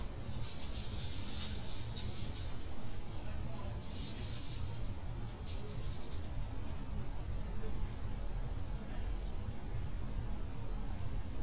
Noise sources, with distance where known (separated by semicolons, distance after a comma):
non-machinery impact